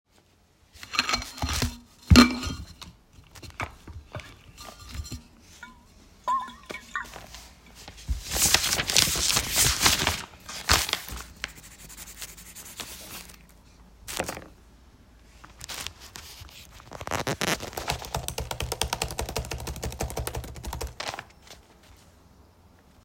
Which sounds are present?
cutlery and dishes, keyboard typing